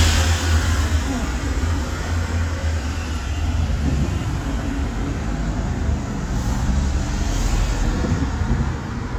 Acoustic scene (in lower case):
street